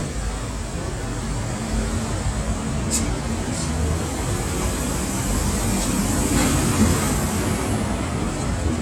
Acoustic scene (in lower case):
street